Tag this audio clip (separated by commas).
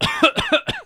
Respiratory sounds, Cough